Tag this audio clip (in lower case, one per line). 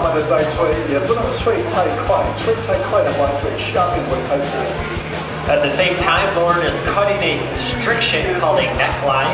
speech
music